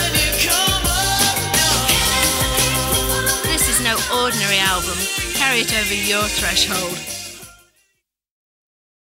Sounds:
Music, Speech

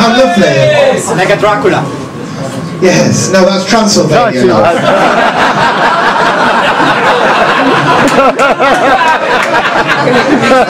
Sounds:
Speech

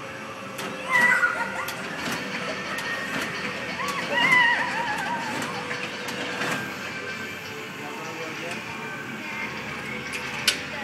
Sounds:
Music, Speech

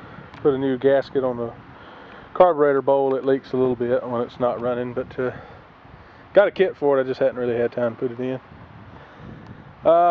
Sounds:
Speech

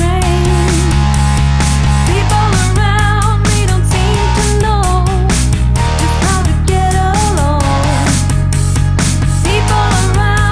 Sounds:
Music

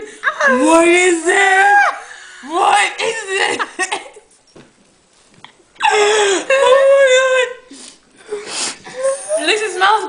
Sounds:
Speech, inside a small room

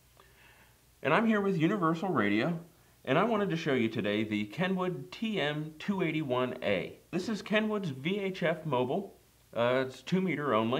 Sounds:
Speech

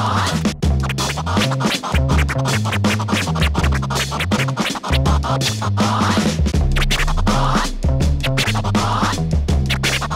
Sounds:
disc scratching

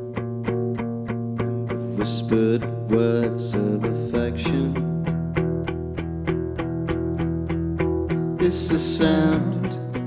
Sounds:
Acoustic guitar, Music

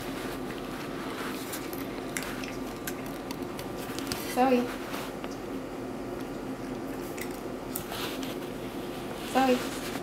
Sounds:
Speech

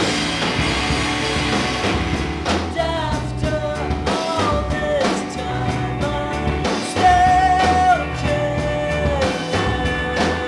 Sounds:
Music

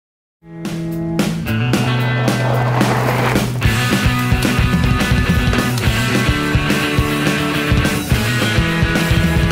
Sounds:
Bicycle, Music, Vehicle

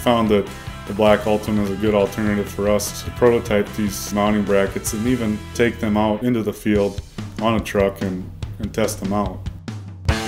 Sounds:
Speech, Music

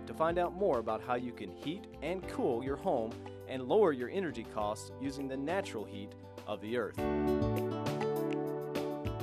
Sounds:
Speech, Music

